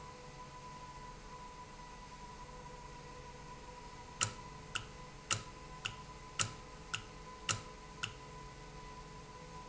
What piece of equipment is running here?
valve